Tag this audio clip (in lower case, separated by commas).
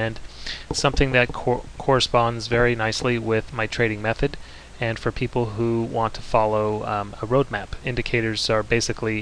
speech